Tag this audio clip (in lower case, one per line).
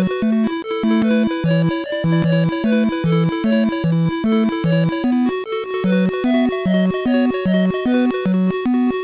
music